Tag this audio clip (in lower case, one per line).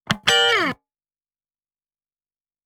plucked string instrument
electric guitar
music
musical instrument
guitar